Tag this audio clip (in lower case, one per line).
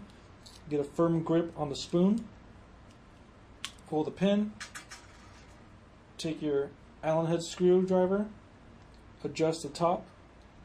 speech